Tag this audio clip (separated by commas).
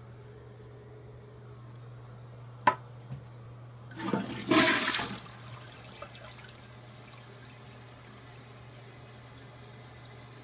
toilet flushing